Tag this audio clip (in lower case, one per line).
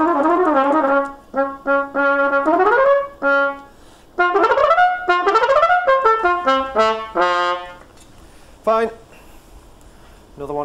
playing cornet